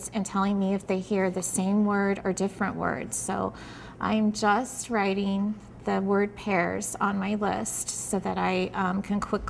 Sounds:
speech

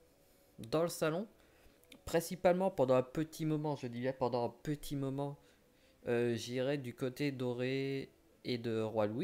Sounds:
speech

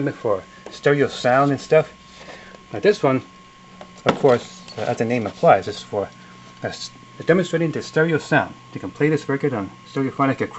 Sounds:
speech

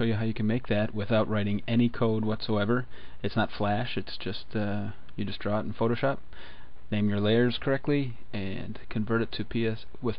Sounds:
speech

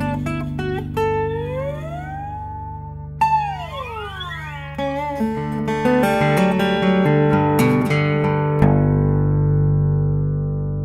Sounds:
plucked string instrument
music
guitar
strum
musical instrument
acoustic guitar

